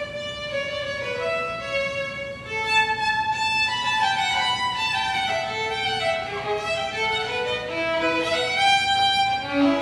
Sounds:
musical instrument, music, violin

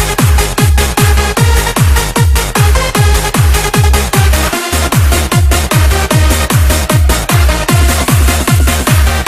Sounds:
techno, electronic music, music

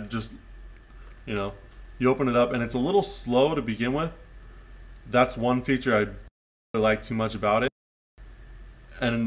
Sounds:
speech

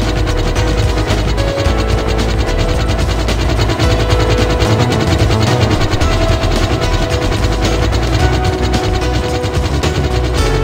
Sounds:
helicopter, vehicle, music

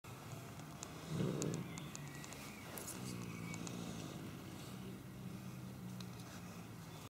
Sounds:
animal, cat, domestic animals

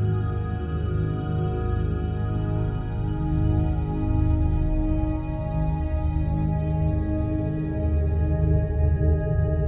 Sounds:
chirp tone

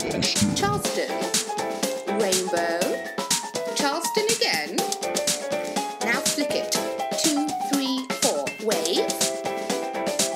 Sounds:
speech, music

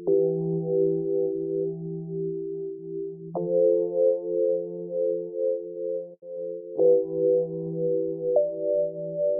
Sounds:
new-age music, music

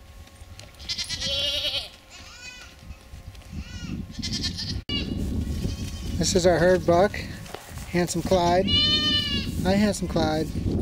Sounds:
livestock

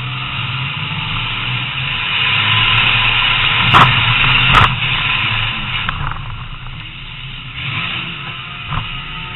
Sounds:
car passing by

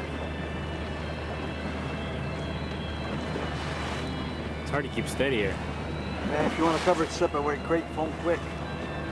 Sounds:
water vehicle, speech, vehicle, music

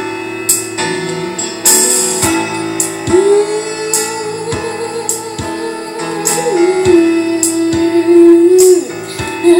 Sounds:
female singing, music

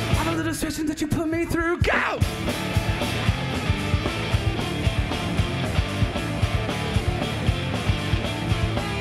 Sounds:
music, speech

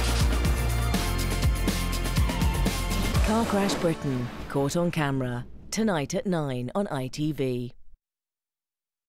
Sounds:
speech, music

